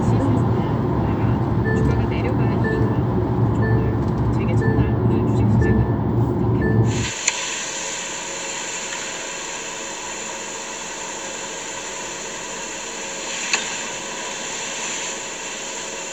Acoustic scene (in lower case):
car